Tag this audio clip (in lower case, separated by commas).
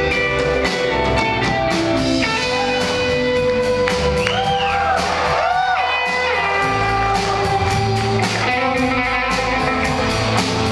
strum, plucked string instrument, musical instrument, electric guitar, music, guitar